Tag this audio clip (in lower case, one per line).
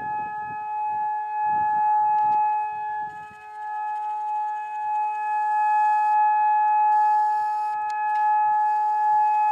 civil defense siren
siren